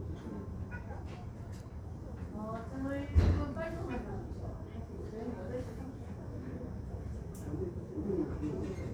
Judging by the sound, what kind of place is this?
crowded indoor space